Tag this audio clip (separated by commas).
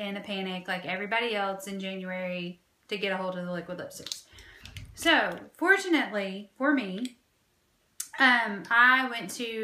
Speech